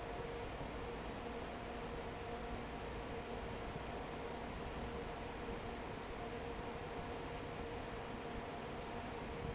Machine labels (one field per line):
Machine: fan